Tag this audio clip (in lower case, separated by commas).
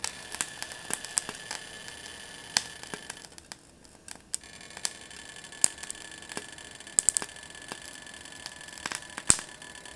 home sounds, frying (food)